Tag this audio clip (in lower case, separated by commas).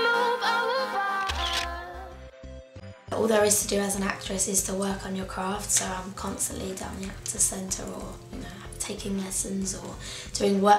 speech, music